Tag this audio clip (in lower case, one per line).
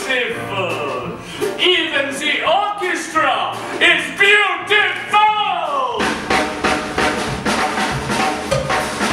music
speech